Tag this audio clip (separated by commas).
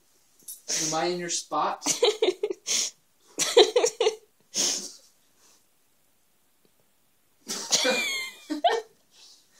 Speech